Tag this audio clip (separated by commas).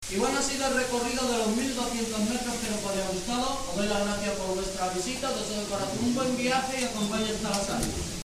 Speech, Human voice